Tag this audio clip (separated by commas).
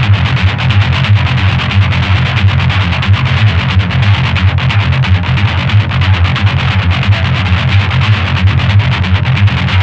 Electric guitar, Plucked string instrument, Musical instrument, Music